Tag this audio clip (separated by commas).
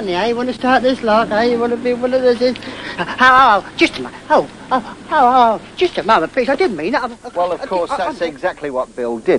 Speech